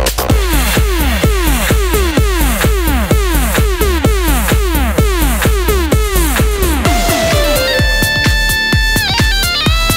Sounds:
Electronic dance music, Electronic music, Music, Soundtrack music, Electronica, House music, Techno, Exciting music, Trance music, Dubstep

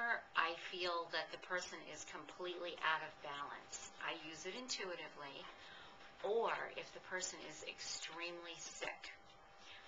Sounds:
Speech

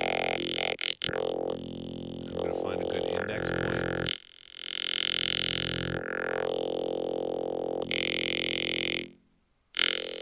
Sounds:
Music, Speech

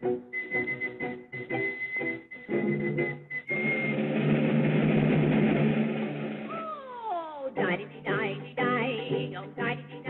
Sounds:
Music

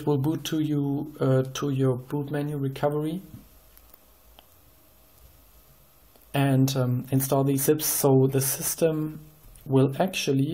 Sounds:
Speech

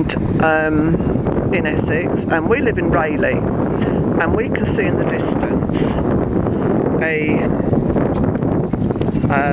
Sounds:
Speech

